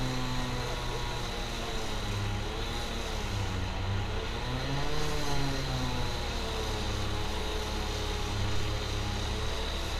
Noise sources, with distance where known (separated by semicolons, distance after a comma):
unidentified powered saw, near